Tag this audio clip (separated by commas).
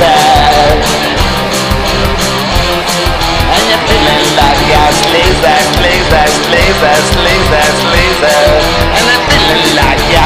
Psychedelic rock, Music